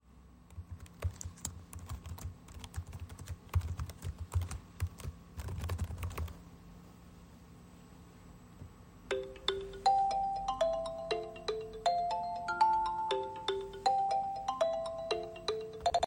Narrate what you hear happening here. I was typing on my laptop keyboard, then I received a phone call.